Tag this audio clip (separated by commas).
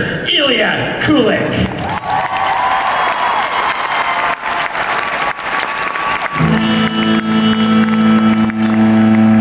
Speech, Music